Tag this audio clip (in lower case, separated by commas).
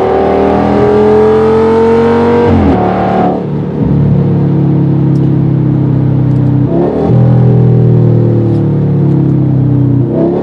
accelerating